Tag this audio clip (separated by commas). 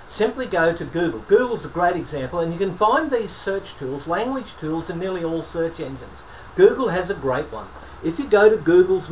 Speech